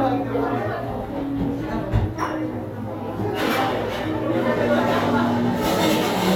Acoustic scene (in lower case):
cafe